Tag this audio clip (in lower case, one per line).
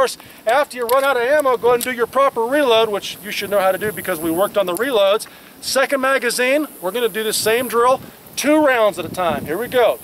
speech
outside, rural or natural